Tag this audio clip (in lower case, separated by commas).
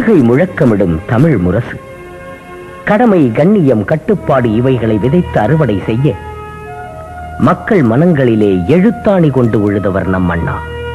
man speaking, speech, speech synthesizer, music